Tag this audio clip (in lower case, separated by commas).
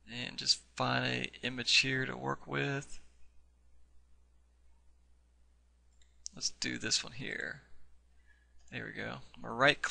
speech